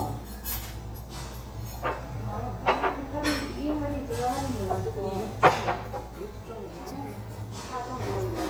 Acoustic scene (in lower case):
restaurant